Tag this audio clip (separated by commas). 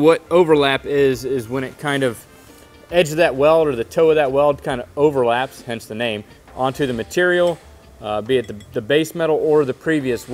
arc welding